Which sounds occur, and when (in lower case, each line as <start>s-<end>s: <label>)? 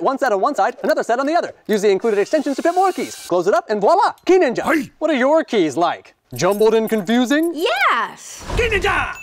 0.0s-1.5s: male speech
0.5s-1.4s: generic impact sounds
1.6s-3.2s: male speech
1.6s-1.8s: generic impact sounds
2.0s-3.3s: mechanisms
3.3s-4.1s: male speech
3.5s-3.6s: generic impact sounds
4.2s-6.1s: male speech
6.3s-7.5s: male speech
7.5s-8.4s: woman speaking
8.2s-9.1s: whoosh
8.4s-9.1s: male speech